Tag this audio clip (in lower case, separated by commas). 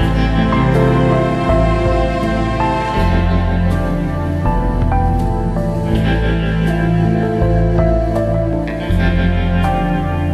music, sad music